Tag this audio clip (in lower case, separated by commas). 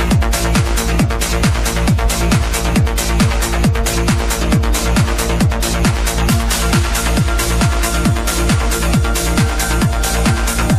music